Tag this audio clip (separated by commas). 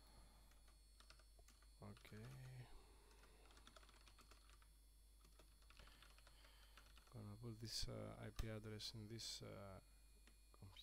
Typing, Speech